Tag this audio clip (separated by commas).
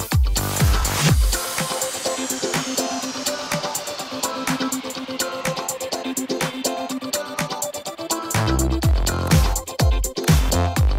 Music